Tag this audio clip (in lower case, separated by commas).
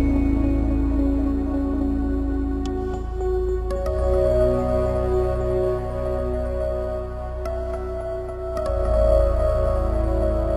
music, musical instrument